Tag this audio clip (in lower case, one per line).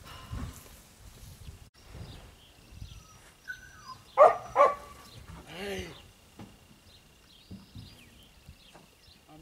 yip
speech